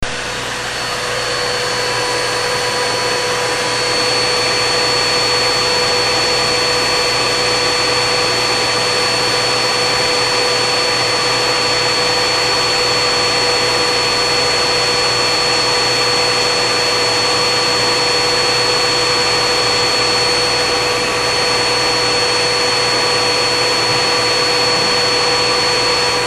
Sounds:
home sounds

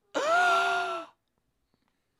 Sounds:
Gasp, Respiratory sounds, Breathing

